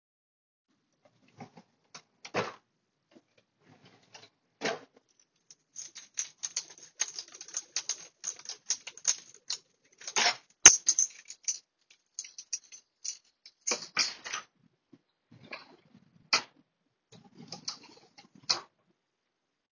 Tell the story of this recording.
I flushed the toilet and turned on the sink water.